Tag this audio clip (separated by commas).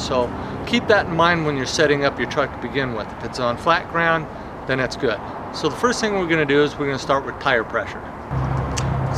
Speech